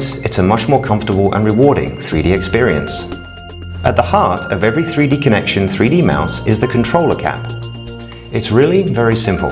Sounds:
speech, music

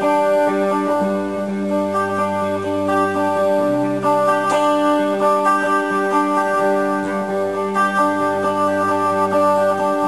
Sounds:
guitar, music, acoustic guitar, musical instrument, plucked string instrument, strum

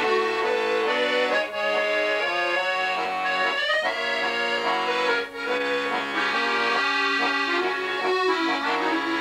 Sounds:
playing accordion, accordion

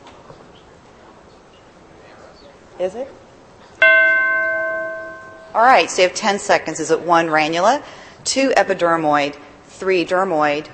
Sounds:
speech

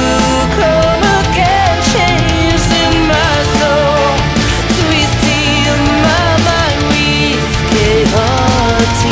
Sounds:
music

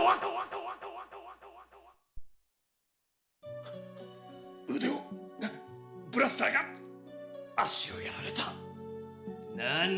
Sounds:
speech, music

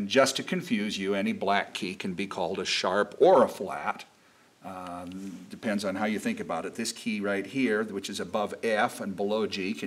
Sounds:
speech

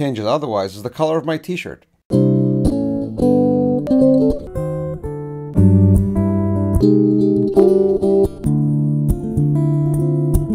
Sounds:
guitar, speech, acoustic guitar, strum, music, musical instrument, plucked string instrument

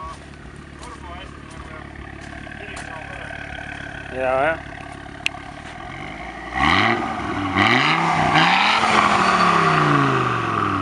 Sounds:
speech

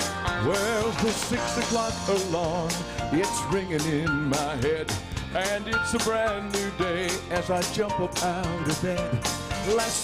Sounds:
gospel music, music, male singing

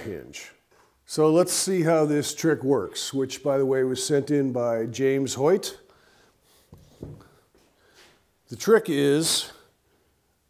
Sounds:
opening or closing drawers

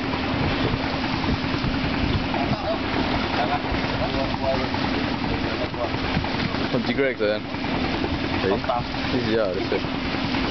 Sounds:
speech

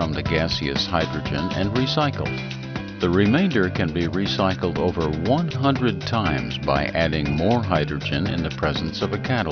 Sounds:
music, speech

